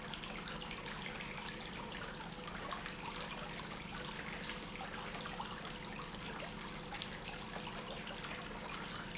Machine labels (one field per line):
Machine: pump